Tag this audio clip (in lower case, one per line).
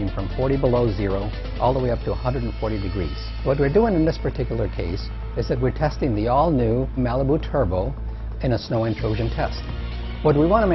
music
speech